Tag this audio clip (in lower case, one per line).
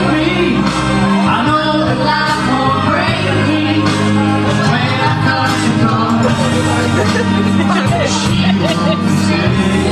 singing
music